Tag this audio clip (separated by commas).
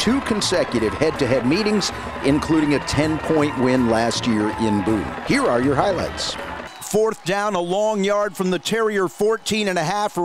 Speech